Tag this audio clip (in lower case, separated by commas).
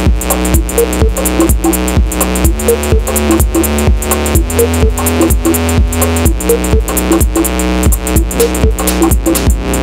music, sound effect